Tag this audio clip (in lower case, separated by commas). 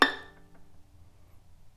bowed string instrument, music, musical instrument